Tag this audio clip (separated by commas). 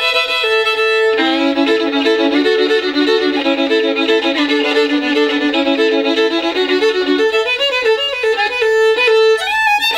Musical instrument, Music, fiddle